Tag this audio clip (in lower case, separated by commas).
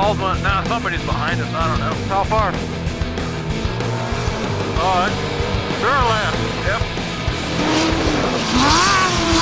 speech, vehicle, truck, music